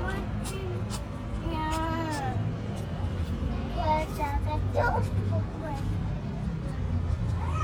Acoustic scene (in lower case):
residential area